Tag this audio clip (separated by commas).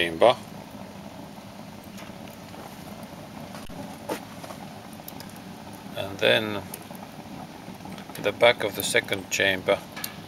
outside, rural or natural, Speech